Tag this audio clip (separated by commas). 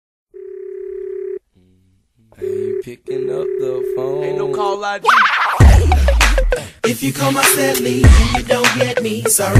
Music, Speech